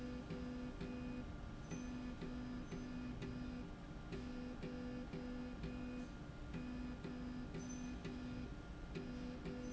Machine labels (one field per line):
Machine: slide rail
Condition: normal